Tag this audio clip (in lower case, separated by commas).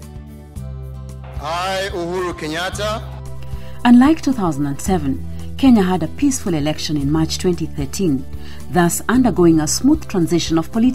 speech, music